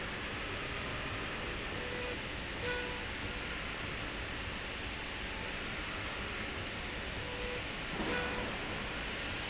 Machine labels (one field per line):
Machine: slide rail